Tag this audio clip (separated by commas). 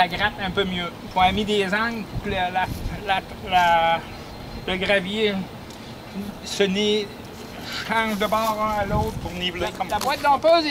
Speech